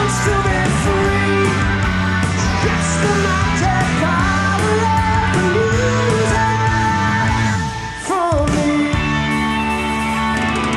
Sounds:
Grunge, Singing

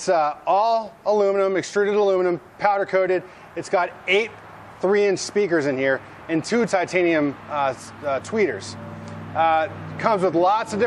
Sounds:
Speech

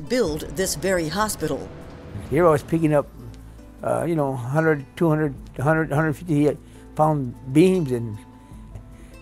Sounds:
Music, Speech

